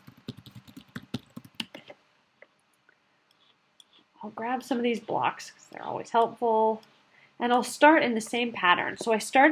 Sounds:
Clicking, Speech

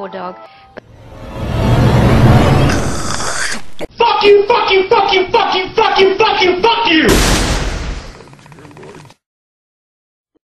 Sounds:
Speech, Music

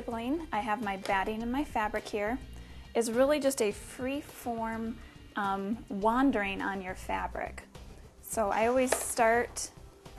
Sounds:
Sewing machine, Music, Speech

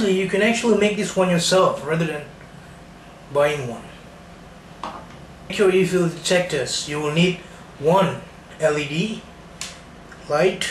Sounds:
Speech

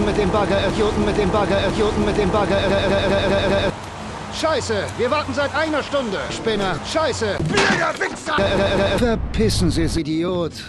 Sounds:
Rain on surface, Music, Speech

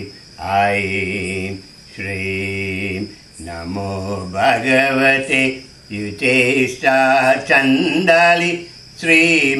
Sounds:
Mantra

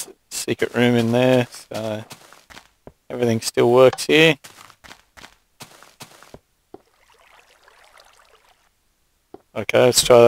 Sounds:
Speech

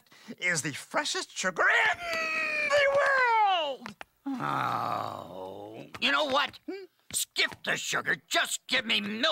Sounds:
inside a small room, Speech

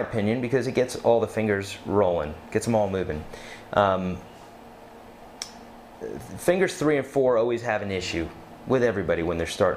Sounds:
Speech

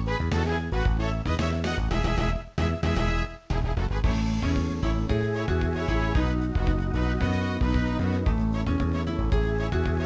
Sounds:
Funny music, Music

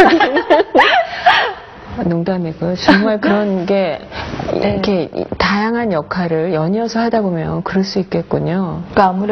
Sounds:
Speech

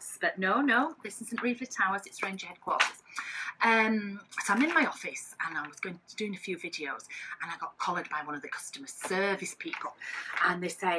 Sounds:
Speech

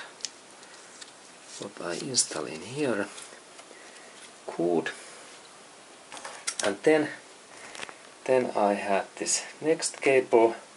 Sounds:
Speech

